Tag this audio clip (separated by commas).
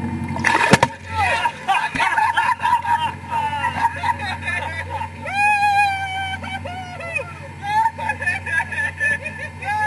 Vehicle, Water vehicle, sailing ship, Speech